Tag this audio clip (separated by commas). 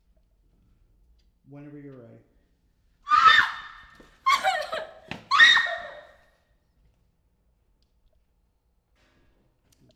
Screaming, Human voice